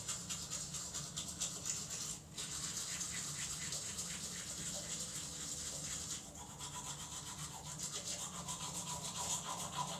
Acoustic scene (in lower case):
restroom